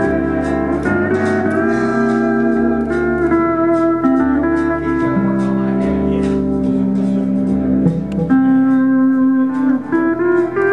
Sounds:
Music, Steel guitar

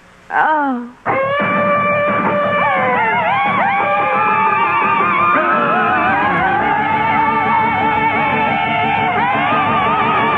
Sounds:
Speech, Music

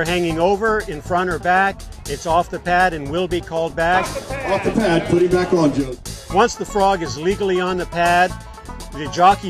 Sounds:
Speech, Music

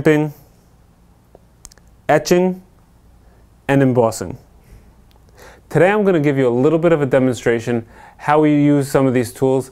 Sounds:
Speech

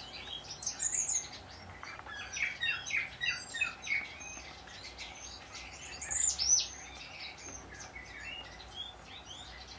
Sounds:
wood thrush calling

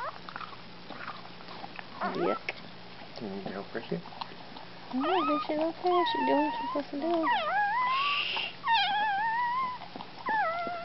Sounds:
Animal, Dog, pets

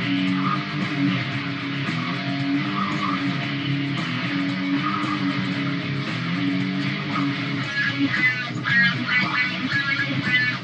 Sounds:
Strum, Musical instrument, Guitar, playing electric guitar, Plucked string instrument, Music, Electric guitar

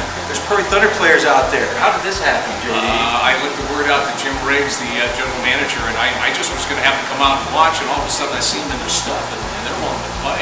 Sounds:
Speech

